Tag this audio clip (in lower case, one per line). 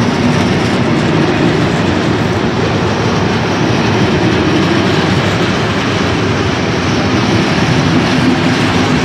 clickety-clack
train
railroad car
rail transport